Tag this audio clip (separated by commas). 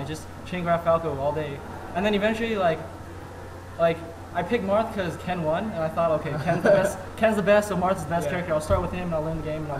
Speech